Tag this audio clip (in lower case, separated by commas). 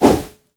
swoosh